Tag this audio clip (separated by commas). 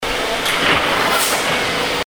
Subway, Vehicle, Rail transport